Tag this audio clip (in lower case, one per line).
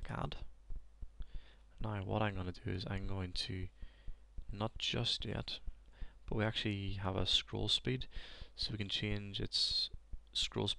speech